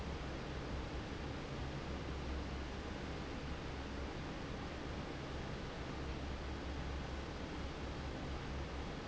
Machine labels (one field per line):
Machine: fan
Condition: normal